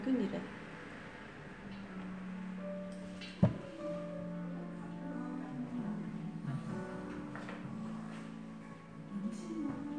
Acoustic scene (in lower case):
cafe